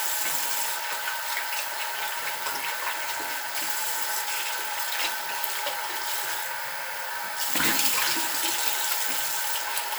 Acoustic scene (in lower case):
restroom